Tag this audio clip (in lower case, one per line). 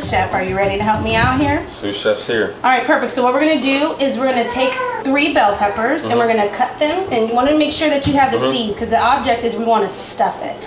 music
speech